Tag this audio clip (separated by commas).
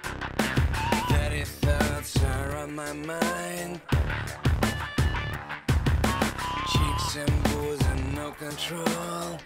Music